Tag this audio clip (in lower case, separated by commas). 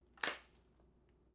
liquid, splash